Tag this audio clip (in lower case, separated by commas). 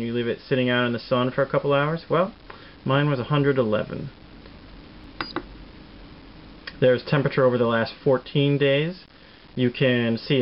speech